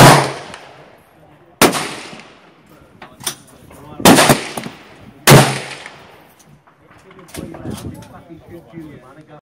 Gunshots with people talking in the background with some reloading